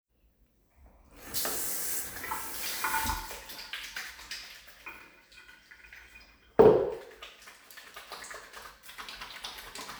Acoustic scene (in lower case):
restroom